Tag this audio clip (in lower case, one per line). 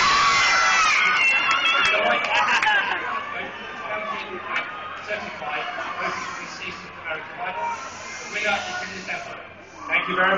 speech